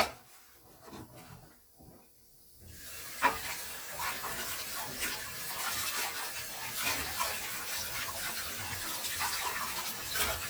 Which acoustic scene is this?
kitchen